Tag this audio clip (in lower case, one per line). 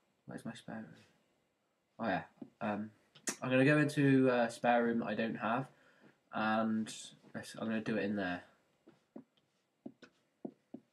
speech